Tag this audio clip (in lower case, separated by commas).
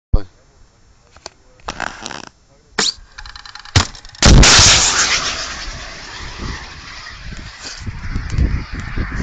speech, outside, rural or natural